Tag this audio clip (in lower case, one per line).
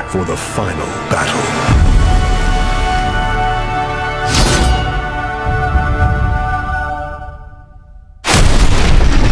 speech
music